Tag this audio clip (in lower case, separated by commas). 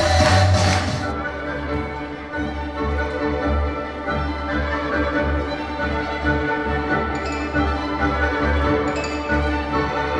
music